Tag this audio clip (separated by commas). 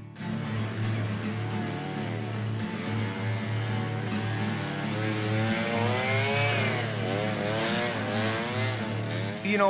Vehicle, Motorcycle, Chainsaw